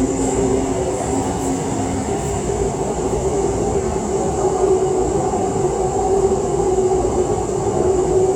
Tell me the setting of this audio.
subway train